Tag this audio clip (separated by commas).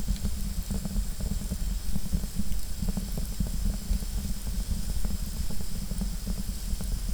Fire